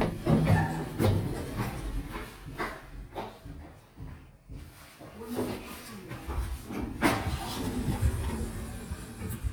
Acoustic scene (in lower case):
elevator